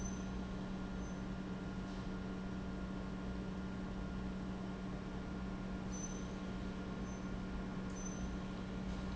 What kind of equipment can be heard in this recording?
pump